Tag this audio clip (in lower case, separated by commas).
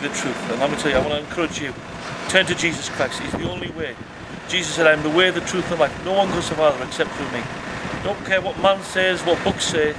speech